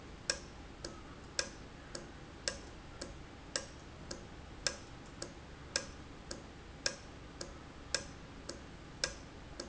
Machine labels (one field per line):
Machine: valve